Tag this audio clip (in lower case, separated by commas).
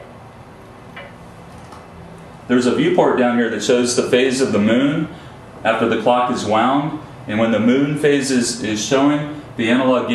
speech